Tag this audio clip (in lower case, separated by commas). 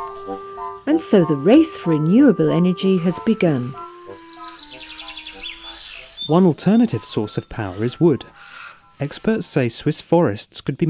music, speech